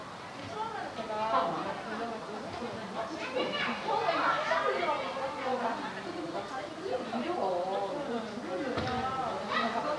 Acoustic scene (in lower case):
park